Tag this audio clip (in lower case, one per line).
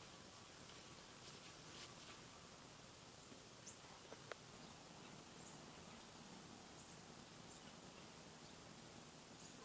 outside, rural or natural